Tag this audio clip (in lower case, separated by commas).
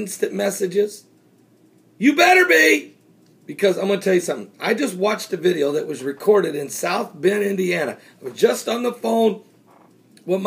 speech